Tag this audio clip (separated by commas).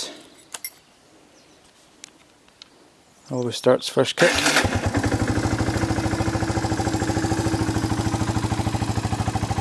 Speech